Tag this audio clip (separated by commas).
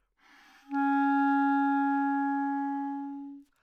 Music, Musical instrument, woodwind instrument